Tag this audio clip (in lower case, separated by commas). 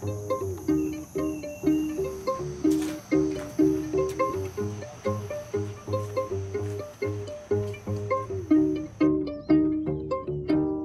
music